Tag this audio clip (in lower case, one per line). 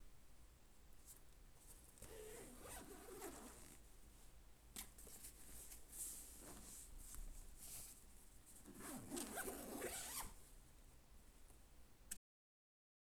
home sounds
zipper (clothing)